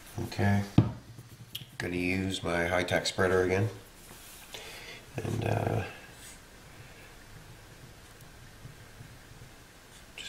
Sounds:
Speech

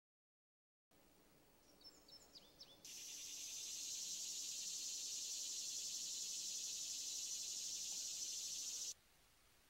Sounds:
Bird, tweet

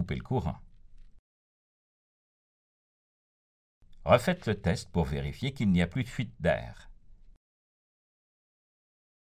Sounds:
Speech

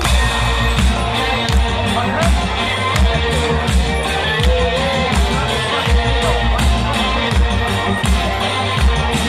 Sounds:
Music, outside, urban or man-made, Speech

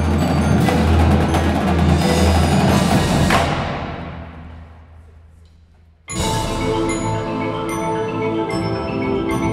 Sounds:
Mallet percussion, Glockenspiel, Drum, Percussion, Drum roll, Bass drum, Marimba

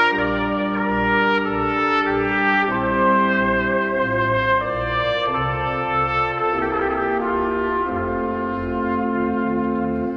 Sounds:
Trumpet, playing trumpet, Music, Musical instrument

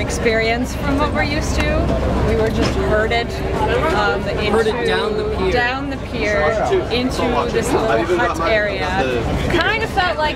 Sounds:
Speech

